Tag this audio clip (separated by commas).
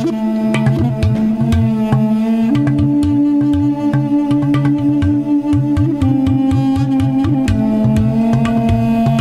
Drum, Percussion